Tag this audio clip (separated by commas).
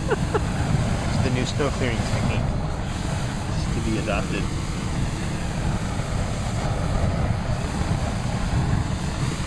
Speech